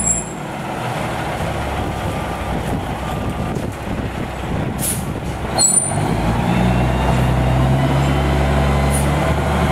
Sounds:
vehicle, truck

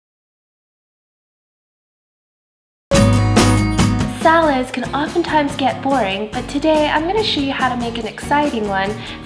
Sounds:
music, speech

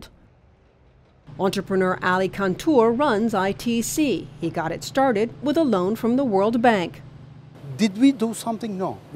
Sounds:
speech

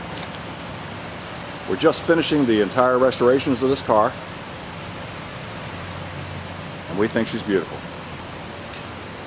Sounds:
speech

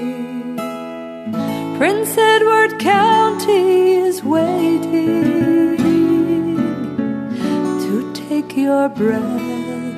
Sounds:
music, acoustic guitar

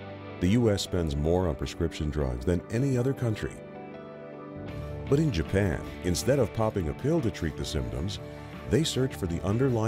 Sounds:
music, speech

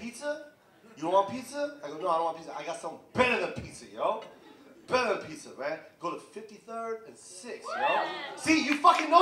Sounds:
speech

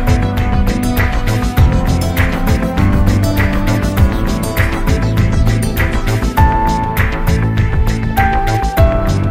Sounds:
music

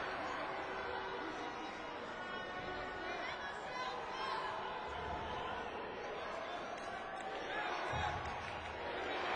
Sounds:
speech

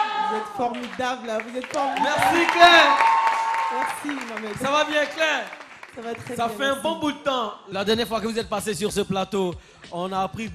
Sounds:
speech

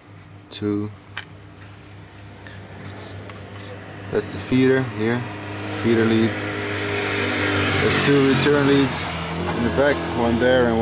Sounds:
engine, medium engine (mid frequency), speech

